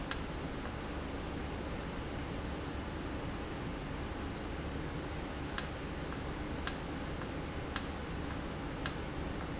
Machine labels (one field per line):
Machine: valve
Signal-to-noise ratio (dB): -6 dB